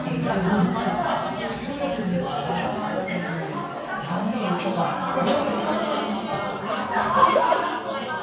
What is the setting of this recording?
crowded indoor space